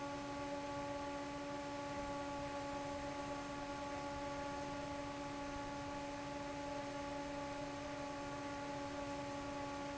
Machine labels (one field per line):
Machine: fan